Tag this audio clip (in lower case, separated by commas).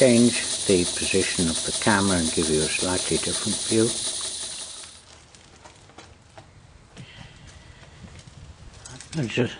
speech, engine